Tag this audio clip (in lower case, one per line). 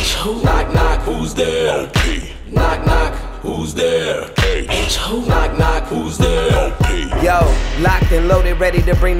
music
hip hop music